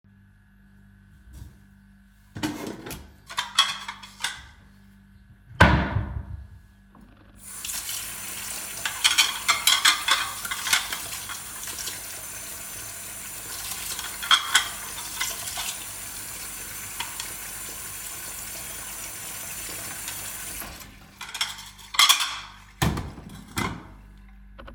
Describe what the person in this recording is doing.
I open the drawer, take out the cutlery then i close the drawer, I open the tap and i start doing the dishes.